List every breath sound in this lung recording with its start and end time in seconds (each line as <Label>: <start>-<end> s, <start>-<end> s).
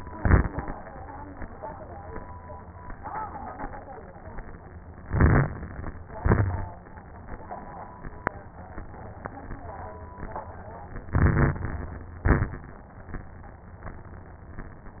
Inhalation: 5.04-6.06 s, 11.08-12.10 s
Exhalation: 0.00-0.68 s, 6.16-6.84 s, 12.20-12.88 s
Crackles: 0.00-0.68 s, 5.04-6.06 s, 6.16-6.84 s, 11.08-12.10 s, 12.20-12.88 s